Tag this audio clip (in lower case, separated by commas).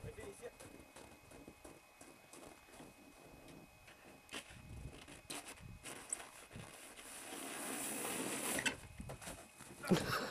outside, rural or natural, speech